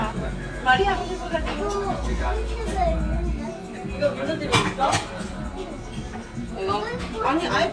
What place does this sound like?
crowded indoor space